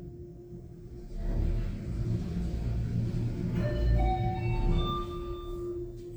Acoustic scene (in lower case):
elevator